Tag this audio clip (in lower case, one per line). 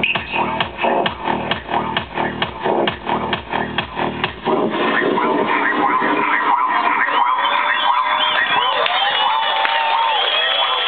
music